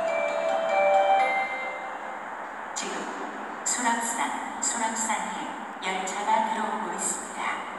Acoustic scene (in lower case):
subway station